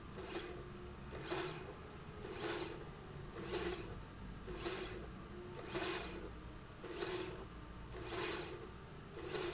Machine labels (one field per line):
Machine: slide rail